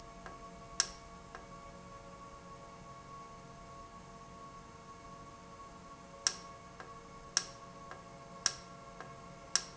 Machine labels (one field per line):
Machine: valve